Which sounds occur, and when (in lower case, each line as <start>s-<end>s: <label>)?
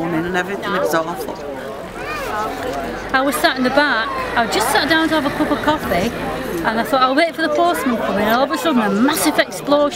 0.0s-1.3s: woman speaking
0.0s-9.9s: conversation
0.0s-9.9s: speech noise
0.0s-9.9s: wind
0.6s-1.8s: man speaking
1.9s-2.3s: kid speaking
2.3s-2.8s: woman speaking
2.5s-3.1s: man speaking
3.1s-4.5s: kid speaking
3.1s-4.1s: woman speaking
4.4s-6.1s: woman speaking
4.4s-4.8s: man speaking
6.6s-9.9s: woman speaking
7.5s-8.9s: kid speaking